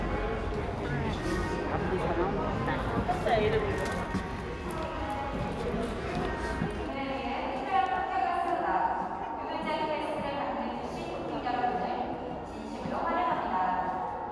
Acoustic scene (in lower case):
crowded indoor space